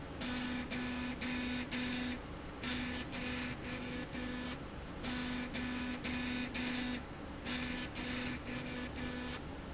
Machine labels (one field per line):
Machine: slide rail